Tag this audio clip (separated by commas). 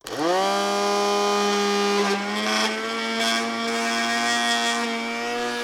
home sounds